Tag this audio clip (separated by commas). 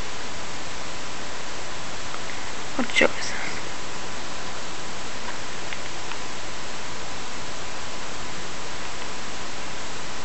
inside a small room, Speech